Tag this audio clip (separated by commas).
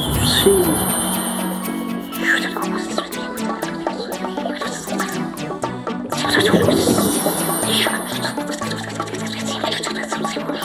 Music